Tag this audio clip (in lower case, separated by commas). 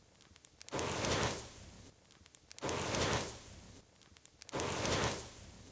fire